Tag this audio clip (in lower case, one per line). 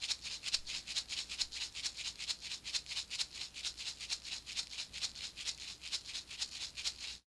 rattle (instrument)
musical instrument
music
percussion